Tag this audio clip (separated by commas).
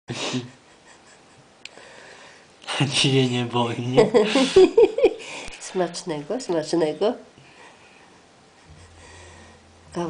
Speech